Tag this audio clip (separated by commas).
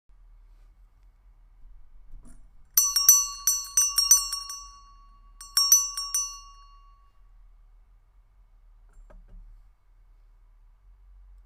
Bell